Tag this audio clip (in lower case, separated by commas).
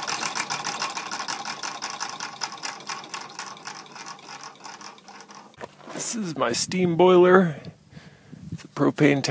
engine, speech